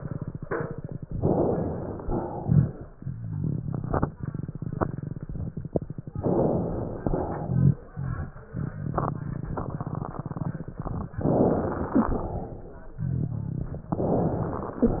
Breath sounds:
1.10-2.05 s: inhalation
2.05-2.92 s: exhalation
2.39-2.75 s: rhonchi
6.21-7.04 s: inhalation
7.04-7.87 s: exhalation
7.40-7.76 s: rhonchi
11.23-12.07 s: inhalation
11.94-12.18 s: wheeze
12.09-13.02 s: exhalation
13.93-14.86 s: inhalation

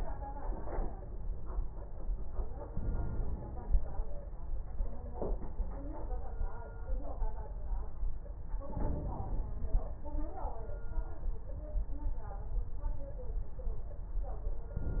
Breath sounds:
2.70-4.20 s: inhalation
8.68-9.53 s: inhalation

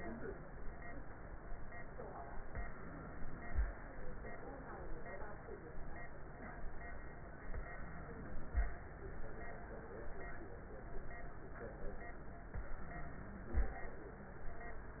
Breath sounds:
2.51-3.87 s: inhalation
3.91-4.80 s: exhalation
7.37-8.55 s: inhalation
8.57-9.75 s: exhalation
12.52-13.55 s: inhalation
13.57-14.97 s: exhalation

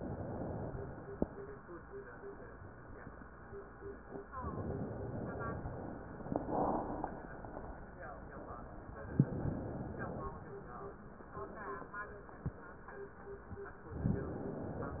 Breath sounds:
0.00-0.71 s: inhalation
0.71-1.67 s: exhalation
4.38-5.62 s: inhalation
5.62-7.09 s: exhalation
9.11-10.46 s: inhalation
14.00-15.00 s: inhalation

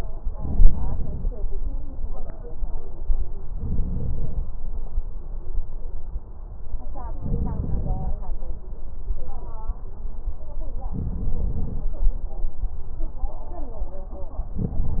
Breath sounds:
0.26-1.31 s: inhalation
0.26-1.31 s: crackles
3.52-4.50 s: inhalation
7.24-8.22 s: inhalation
10.96-11.86 s: inhalation
14.62-15.00 s: inhalation
14.62-15.00 s: crackles

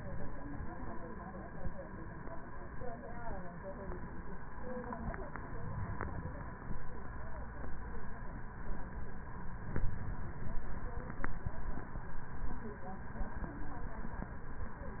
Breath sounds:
5.16-6.66 s: inhalation

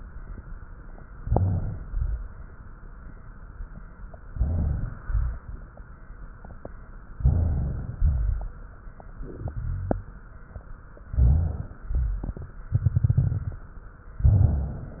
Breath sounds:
1.18-1.88 s: inhalation
1.18-1.88 s: crackles
1.88-4.24 s: exhalation
4.26-5.00 s: inhalation
4.26-5.00 s: crackles
5.00-7.11 s: exhalation
5.00-7.11 s: crackles
7.15-9.11 s: inhalation
7.15-9.11 s: crackles
9.13-11.03 s: exhalation
9.13-11.03 s: crackles
11.07-12.67 s: inhalation
11.07-12.67 s: crackles
12.70-14.14 s: exhalation
12.70-14.14 s: crackles
14.16-14.98 s: inhalation
14.16-14.98 s: crackles

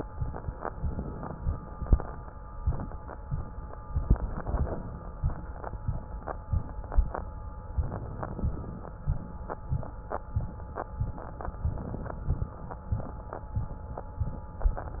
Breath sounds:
0.63-1.82 s: inhalation
3.98-4.86 s: inhalation
7.76-8.96 s: inhalation
11.46-12.66 s: inhalation

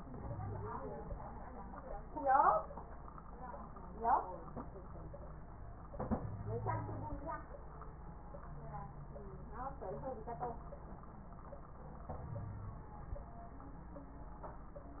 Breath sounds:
0.20-0.71 s: wheeze
6.15-7.13 s: wheeze
12.36-12.84 s: wheeze

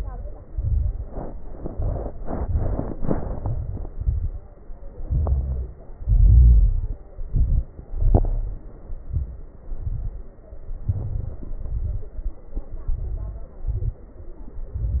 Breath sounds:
0.00-0.43 s: exhalation
0.42-1.06 s: inhalation
0.42-1.06 s: crackles
1.52-2.22 s: exhalation
1.52-2.22 s: crackles
2.26-2.96 s: inhalation
2.26-2.96 s: crackles
2.98-3.38 s: exhalation
2.98-3.38 s: crackles
3.42-3.93 s: inhalation
3.42-3.93 s: crackles
3.99-4.50 s: exhalation
3.99-4.50 s: crackles
5.05-5.77 s: inhalation
5.05-5.77 s: crackles
5.99-7.05 s: exhalation
5.99-7.05 s: crackles
7.18-7.83 s: inhalation
7.18-7.83 s: crackles
7.91-8.68 s: exhalation
7.91-8.68 s: crackles
8.87-9.65 s: inhalation
8.87-9.65 s: crackles
9.67-10.45 s: exhalation
9.67-10.45 s: crackles
10.81-11.59 s: inhalation
10.81-11.59 s: crackles
11.59-12.45 s: exhalation
11.59-12.45 s: crackles
12.83-13.68 s: inhalation
12.85-13.60 s: crackles
13.66-14.36 s: exhalation
13.66-14.36 s: crackles
14.69-15.00 s: crackles

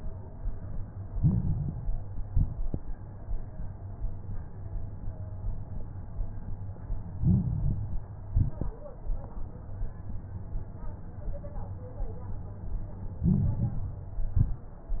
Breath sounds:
1.02-2.14 s: inhalation
1.02-2.14 s: crackles
2.18-2.96 s: exhalation
2.18-2.96 s: crackles
7.11-8.23 s: inhalation
7.11-8.23 s: crackles
8.25-9.02 s: exhalation
13.17-14.29 s: inhalation
13.17-14.29 s: crackles
14.27-15.00 s: exhalation
14.31-15.00 s: crackles

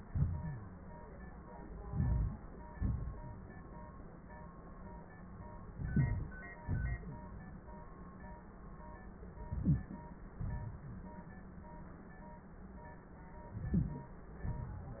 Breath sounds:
1.88-2.37 s: inhalation
2.75-3.76 s: exhalation
5.73-6.47 s: inhalation
6.60-7.55 s: exhalation
9.49-10.04 s: inhalation
9.63-9.77 s: wheeze
10.46-11.06 s: exhalation
13.59-14.19 s: inhalation
14.52-15.00 s: exhalation

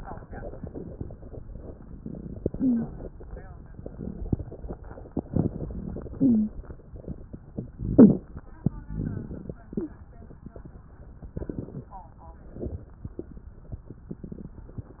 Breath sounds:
2.39-3.06 s: inhalation
2.52-2.90 s: wheeze
6.07-6.74 s: inhalation
6.17-6.55 s: wheeze
7.89-8.25 s: inhalation
7.89-8.25 s: wheeze
8.80-9.56 s: exhalation
8.80-9.56 s: rhonchi
9.73-9.96 s: wheeze

